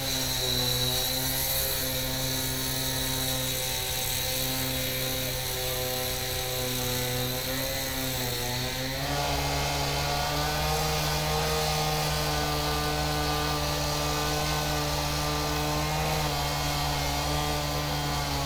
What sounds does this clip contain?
chainsaw